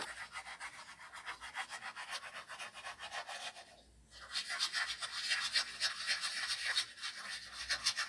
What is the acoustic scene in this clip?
restroom